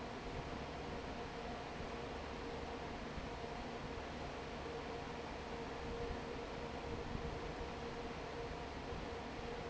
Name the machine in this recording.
fan